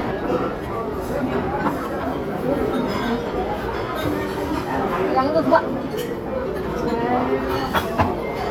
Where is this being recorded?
in a restaurant